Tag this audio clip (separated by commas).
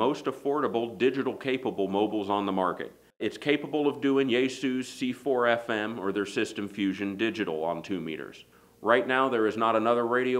Speech